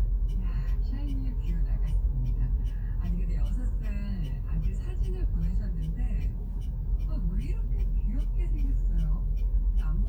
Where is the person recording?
in a car